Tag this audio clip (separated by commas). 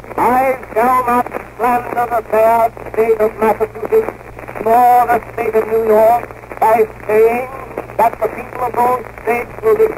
man speaking, Speech, monologue